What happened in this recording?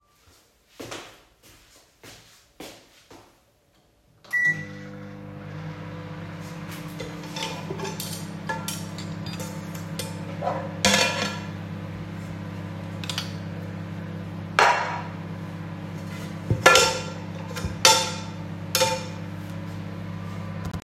I walked to the microwave, turned it on, and while it was working I was moving some of the dishes in the kitchen.